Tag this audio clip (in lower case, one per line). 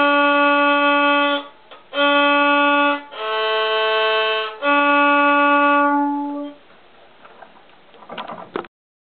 fiddle
musical instrument
music